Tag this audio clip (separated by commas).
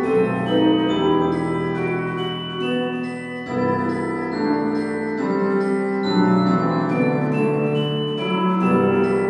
Music